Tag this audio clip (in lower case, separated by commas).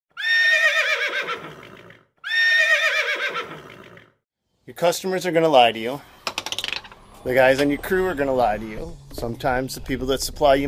speech, whinny